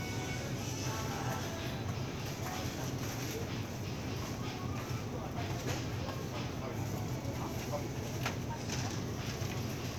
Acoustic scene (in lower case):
crowded indoor space